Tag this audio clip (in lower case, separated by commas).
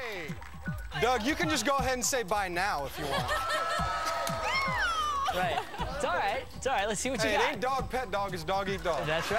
music, speech